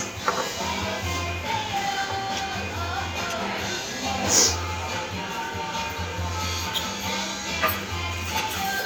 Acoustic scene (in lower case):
restaurant